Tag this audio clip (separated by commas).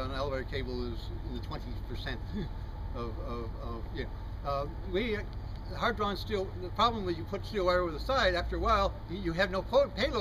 Speech